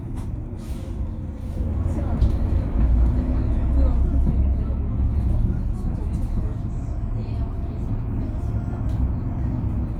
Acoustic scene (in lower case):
bus